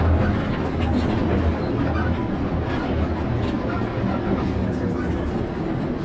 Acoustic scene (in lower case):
bus